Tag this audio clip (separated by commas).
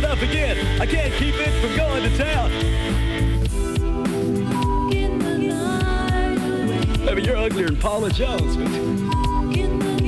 Music